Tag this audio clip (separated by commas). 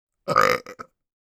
eructation